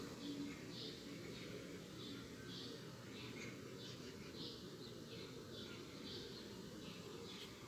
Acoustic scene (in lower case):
park